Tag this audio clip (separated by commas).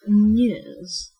Female speech, Speech, Human voice